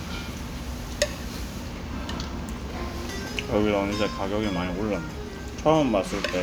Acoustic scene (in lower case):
restaurant